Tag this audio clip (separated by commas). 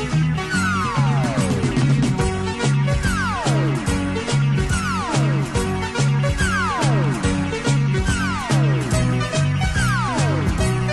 Music